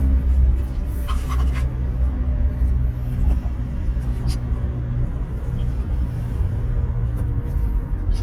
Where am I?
in a car